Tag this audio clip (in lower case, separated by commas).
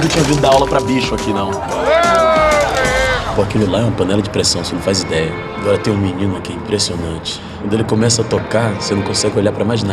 music, musical instrument, speech, fiddle